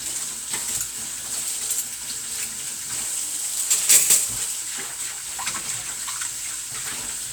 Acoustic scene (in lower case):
kitchen